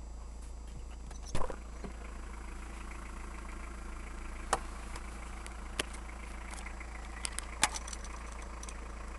Sound of an engine running while idle and random sounds of small solid objects moving in the background